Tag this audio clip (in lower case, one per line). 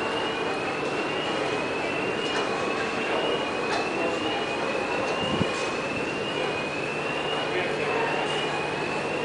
speech